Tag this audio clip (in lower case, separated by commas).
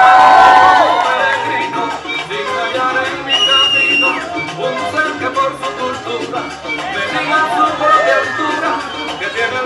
speech, music